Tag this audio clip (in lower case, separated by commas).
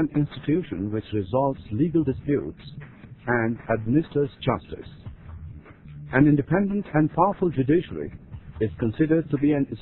sampler, music, speech